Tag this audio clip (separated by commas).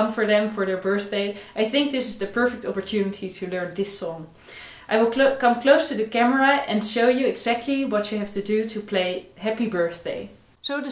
Speech